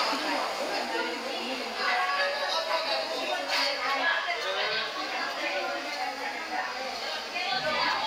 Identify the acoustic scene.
restaurant